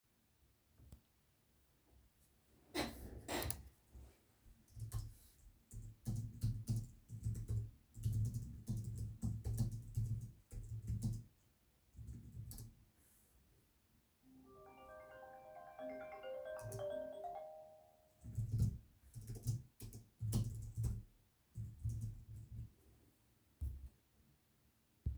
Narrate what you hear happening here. I was sitting on a chair, which squeaked, clicked on the mouse, started typing, then phone rang.